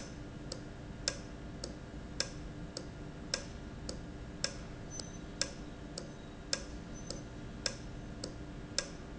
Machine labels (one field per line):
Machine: valve